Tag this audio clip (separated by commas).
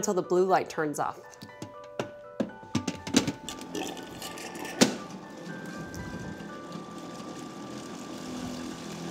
Speech, Music